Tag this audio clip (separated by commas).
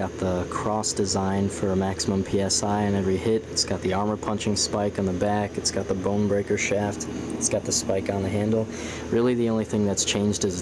Speech